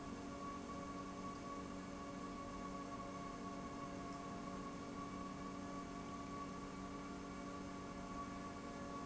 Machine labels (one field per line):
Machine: pump